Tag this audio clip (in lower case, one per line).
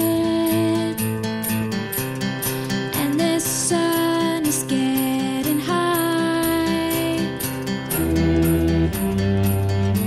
music